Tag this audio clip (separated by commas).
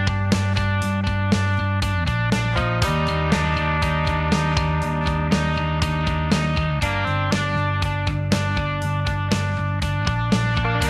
Music